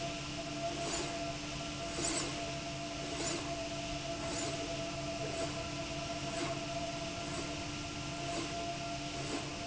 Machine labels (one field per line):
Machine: slide rail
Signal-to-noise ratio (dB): -6 dB